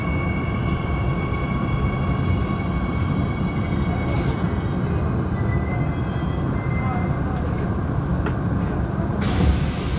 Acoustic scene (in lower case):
subway train